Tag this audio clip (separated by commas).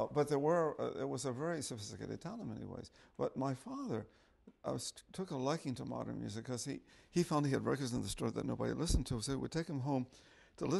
Speech